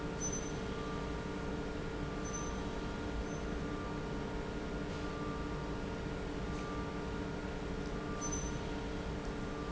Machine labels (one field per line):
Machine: pump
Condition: normal